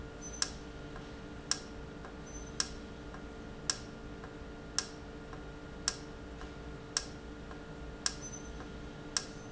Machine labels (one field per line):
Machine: valve